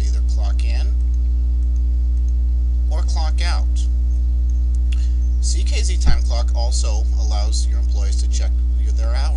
A man talks while clicking a mouse